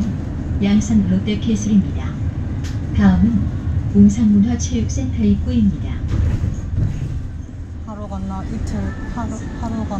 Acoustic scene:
bus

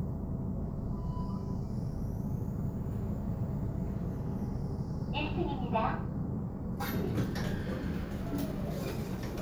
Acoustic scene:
elevator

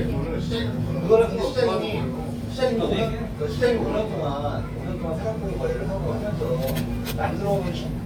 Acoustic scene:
restaurant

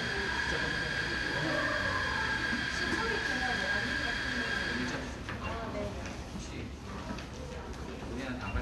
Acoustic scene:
crowded indoor space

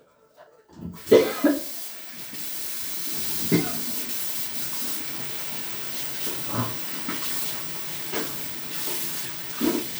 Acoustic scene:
restroom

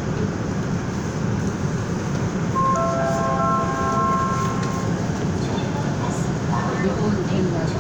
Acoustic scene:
subway train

